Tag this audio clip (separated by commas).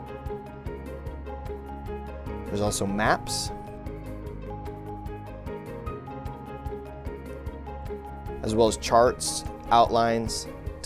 Speech, Music